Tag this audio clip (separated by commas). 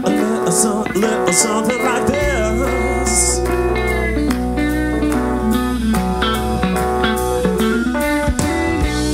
Music